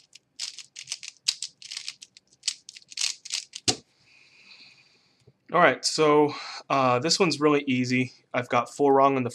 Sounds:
speech

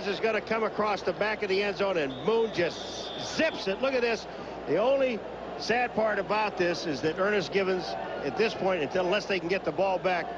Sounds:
speech

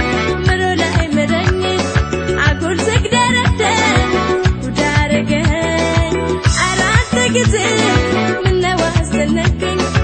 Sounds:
rhythm and blues, folk music, music, independent music

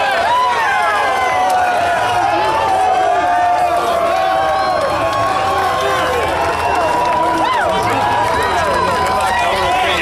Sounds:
speech

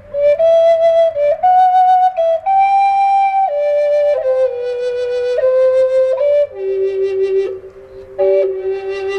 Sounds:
playing flute, music, flute

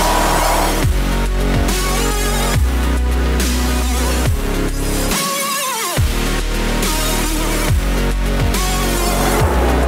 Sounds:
music, crowd, sound effect, sizzle

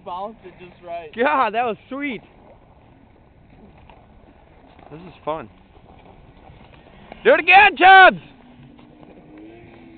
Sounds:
speech

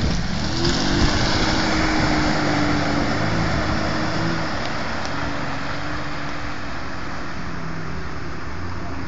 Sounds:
stream

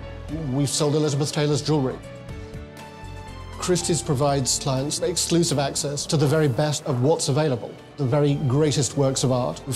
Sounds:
speech, music

